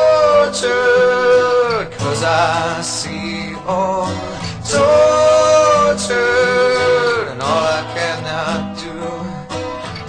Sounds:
country

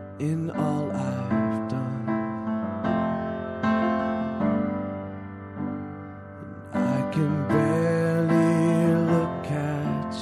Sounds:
music

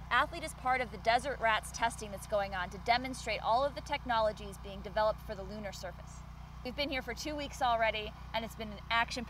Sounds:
speech

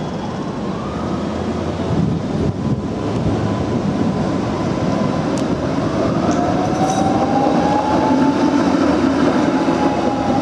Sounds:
train
rail transport
train wagon

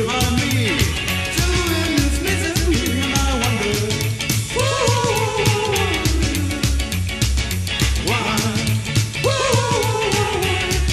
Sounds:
music

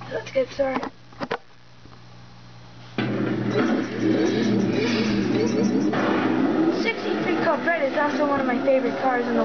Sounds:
car
motor vehicle (road)
speech
car passing by
vehicle

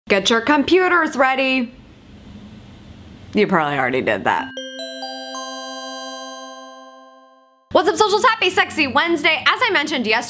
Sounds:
speech
music

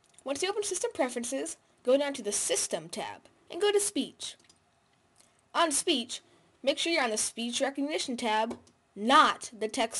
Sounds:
monologue
woman speaking
speech

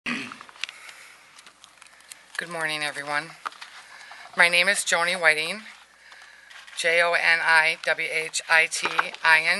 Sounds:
inside a large room or hall
speech

